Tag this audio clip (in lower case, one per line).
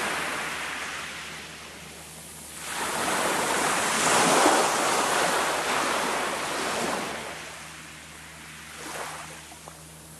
ocean
outside, rural or natural
ocean burbling